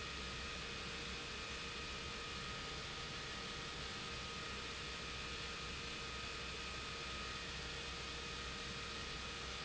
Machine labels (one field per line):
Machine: pump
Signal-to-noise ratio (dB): 6 dB